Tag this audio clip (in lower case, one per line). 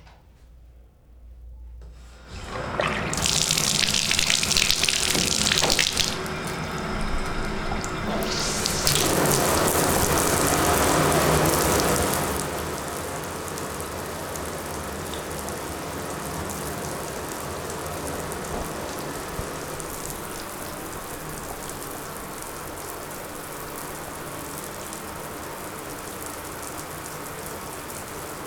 bathtub (filling or washing)
domestic sounds